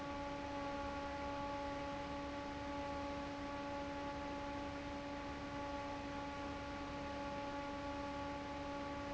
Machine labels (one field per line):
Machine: fan